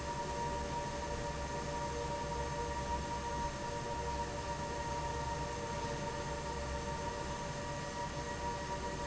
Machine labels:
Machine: fan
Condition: normal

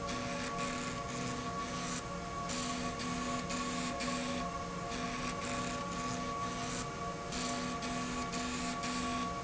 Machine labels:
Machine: slide rail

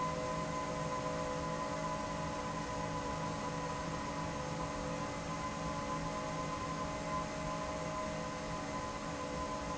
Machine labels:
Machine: fan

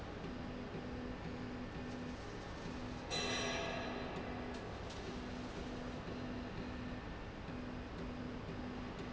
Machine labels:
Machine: slide rail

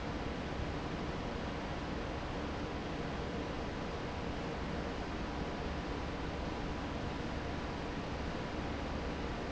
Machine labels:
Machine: fan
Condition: normal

